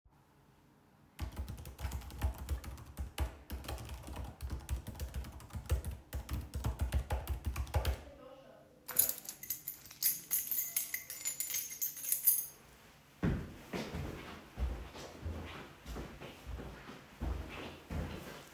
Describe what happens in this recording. I was typing on a keyboard at my desk. After finishing my work, I picked up a keychain from the table. Then I walked away from the desk to leave the room.